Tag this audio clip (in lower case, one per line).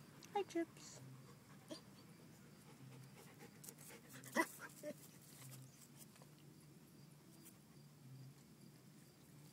speech